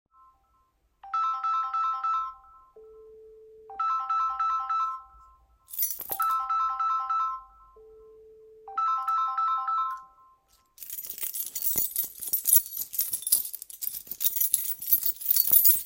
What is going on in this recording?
Heading out with keys in hand, the phonr started ringing.